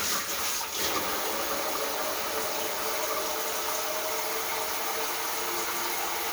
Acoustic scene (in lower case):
kitchen